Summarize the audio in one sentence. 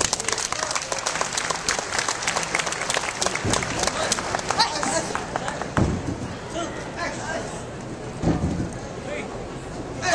People clap and chatter